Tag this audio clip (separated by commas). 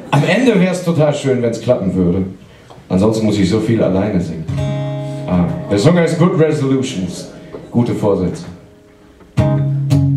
Music, Speech